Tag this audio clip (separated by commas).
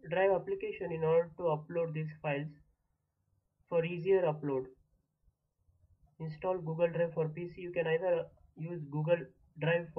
Speech